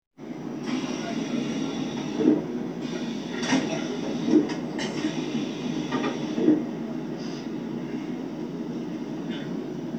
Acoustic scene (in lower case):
subway train